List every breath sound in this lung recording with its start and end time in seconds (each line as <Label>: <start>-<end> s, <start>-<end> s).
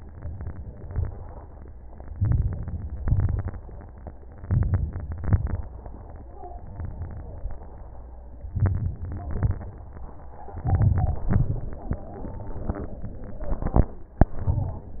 Inhalation: 2.12-3.00 s, 4.45-5.20 s, 8.55-9.27 s, 10.63-11.32 s, 14.40-15.00 s
Exhalation: 3.02-3.89 s, 5.21-5.95 s, 9.32-10.04 s, 11.31-11.99 s